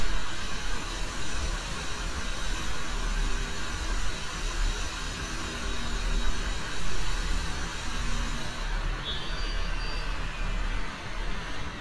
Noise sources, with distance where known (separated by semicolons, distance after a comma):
engine of unclear size, near